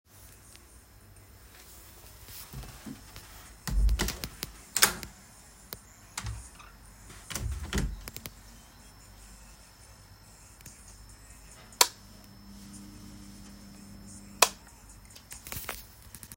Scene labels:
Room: hallway; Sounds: door, light switch

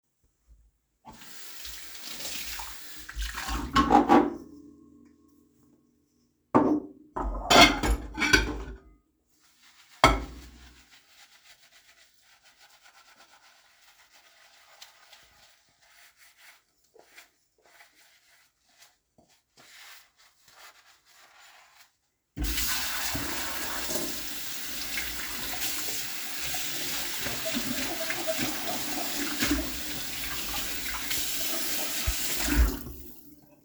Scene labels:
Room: kitchen; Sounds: running water, cutlery and dishes

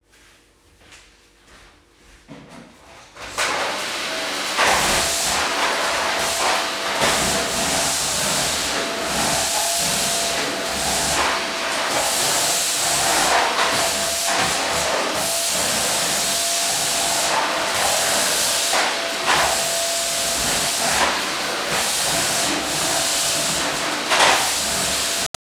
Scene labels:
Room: bedroom; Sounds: footsteps, vacuum cleaner

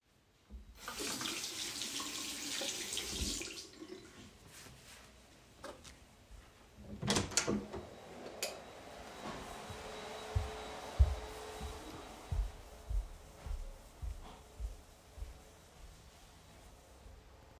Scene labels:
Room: bathroom, hallway; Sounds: running water, door, vacuum cleaner, light switch, footsteps

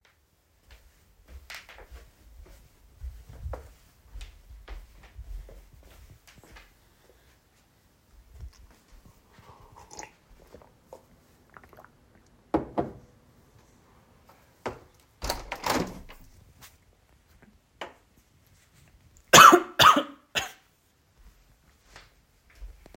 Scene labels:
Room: kitchen; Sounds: footsteps, cutlery and dishes, window

